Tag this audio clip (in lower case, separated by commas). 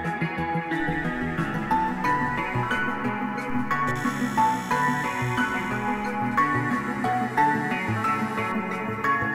music